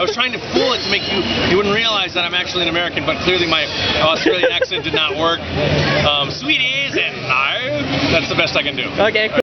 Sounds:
speech

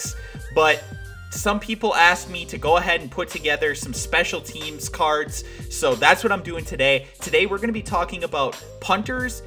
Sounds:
speech
music

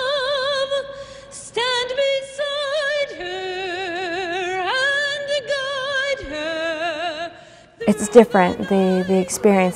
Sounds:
speech
music

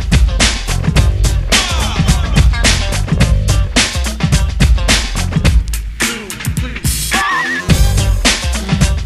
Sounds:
music

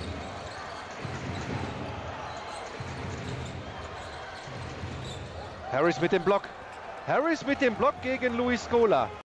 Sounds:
speech

